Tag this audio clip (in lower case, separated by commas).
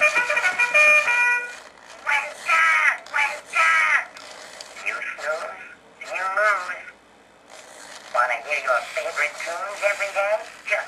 speech, music